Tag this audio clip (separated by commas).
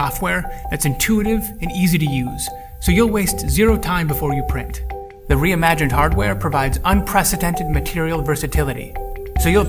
Speech, Music